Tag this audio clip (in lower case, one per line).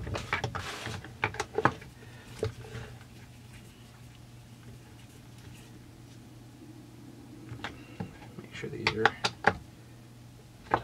speech